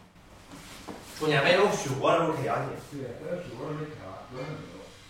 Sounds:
Human voice, Speech

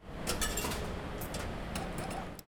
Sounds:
home sounds, Coin (dropping)

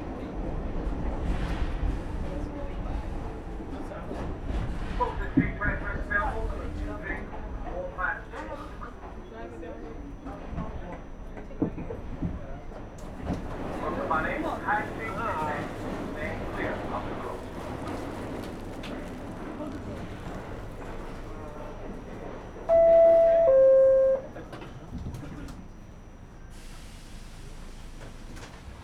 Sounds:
underground, Rail transport, Vehicle

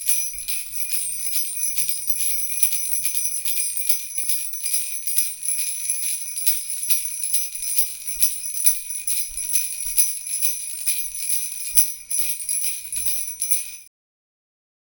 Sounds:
Bell

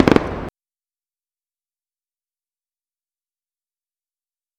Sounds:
Fireworks, Explosion

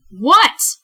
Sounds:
Female speech, Human voice, Speech

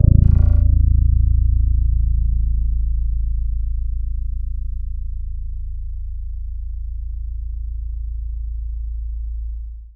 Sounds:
Guitar, Music, Bass guitar, Plucked string instrument, Musical instrument

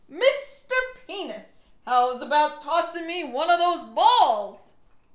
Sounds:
Yell, Shout, Female speech, Speech, Human voice

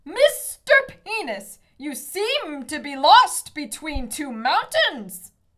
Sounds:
Shout, Human voice, Yell

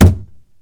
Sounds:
thud

